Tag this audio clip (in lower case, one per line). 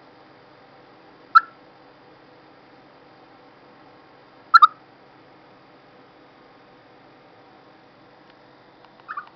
chipmunk chirping